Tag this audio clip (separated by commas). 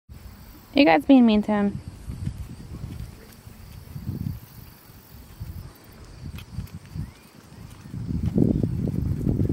Speech